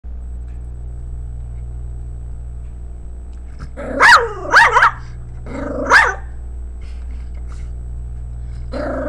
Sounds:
Animal, Bark, Dog, Domestic animals, dog barking

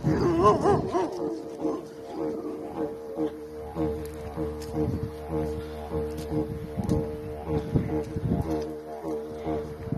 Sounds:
playing didgeridoo

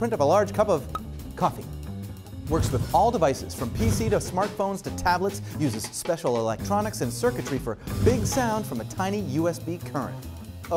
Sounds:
Music, Speech

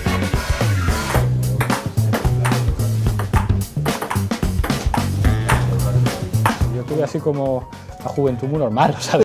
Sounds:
Music, Speech

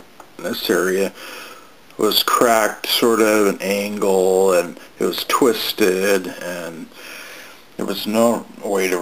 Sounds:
Speech

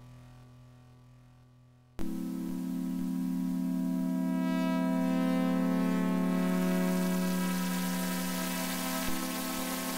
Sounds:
Music, Sampler

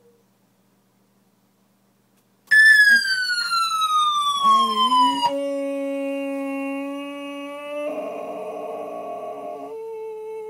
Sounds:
pets, Dog, Ambulance (siren), Howl, Animal

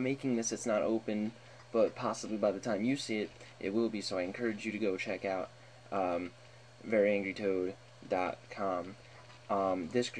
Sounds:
Speech

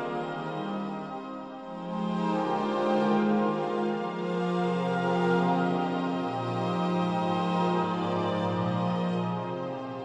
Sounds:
Music, Background music

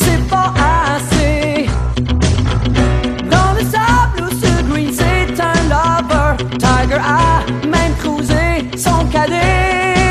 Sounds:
Music

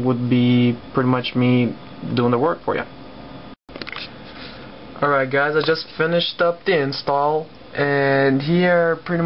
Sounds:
Speech

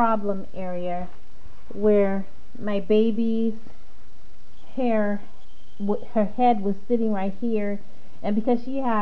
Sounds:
Speech

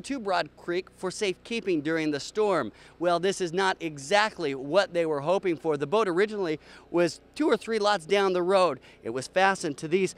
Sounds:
Speech

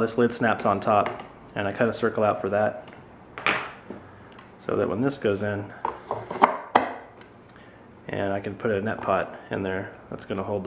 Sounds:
Speech, inside a small room

